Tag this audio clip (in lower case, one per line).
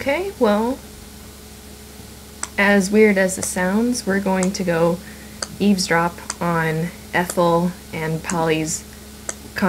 speech